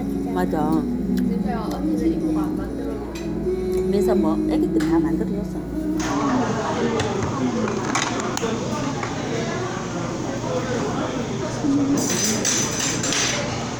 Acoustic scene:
restaurant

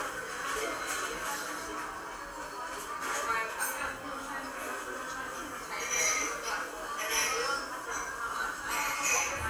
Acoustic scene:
cafe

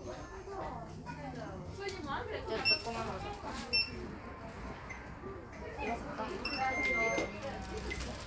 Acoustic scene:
crowded indoor space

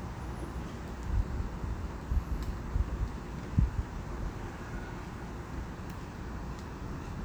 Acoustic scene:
residential area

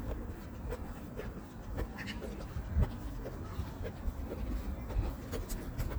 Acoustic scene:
park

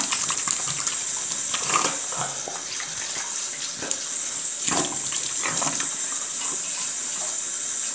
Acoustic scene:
restroom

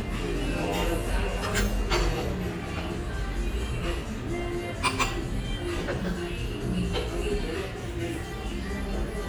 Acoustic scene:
restaurant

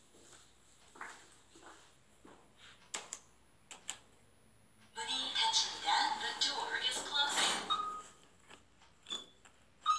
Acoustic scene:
elevator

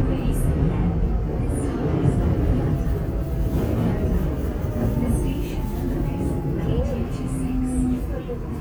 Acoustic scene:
subway train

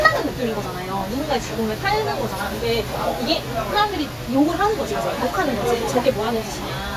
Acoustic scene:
restaurant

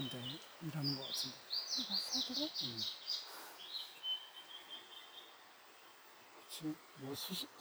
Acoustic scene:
park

